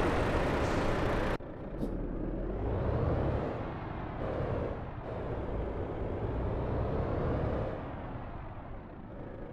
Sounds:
Truck

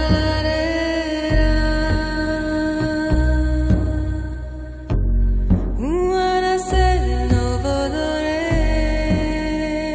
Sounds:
Background music, Music

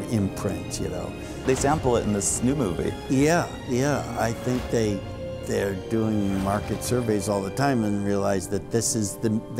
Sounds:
Music, Male speech, Speech, Narration

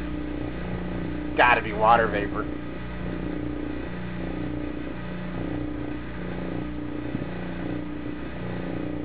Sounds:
Speech

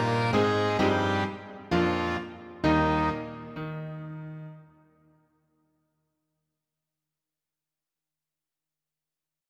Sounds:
Music, Musical instrument

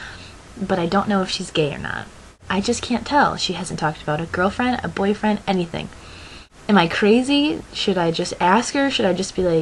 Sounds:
Narration

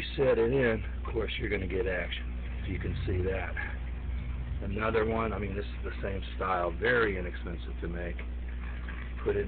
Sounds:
Speech

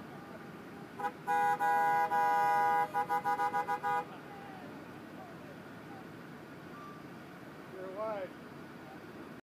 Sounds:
Speech

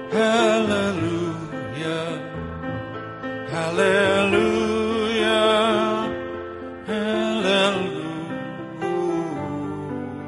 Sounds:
Music

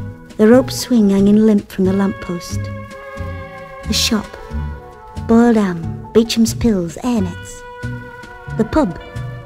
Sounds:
Music, Speech

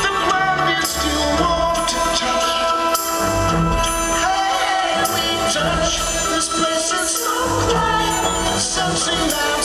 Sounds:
Independent music, Music, Ska, Rhythm and blues

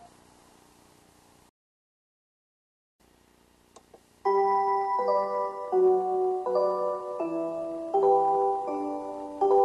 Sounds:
Music

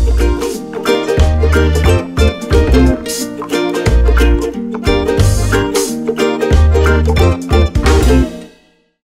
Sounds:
Music

